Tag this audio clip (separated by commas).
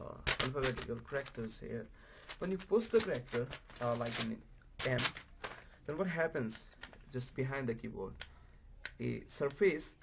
Speech